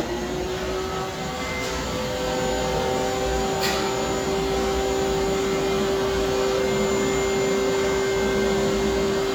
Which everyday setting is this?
cafe